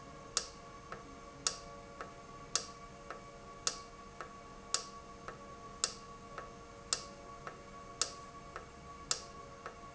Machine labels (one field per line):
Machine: valve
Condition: normal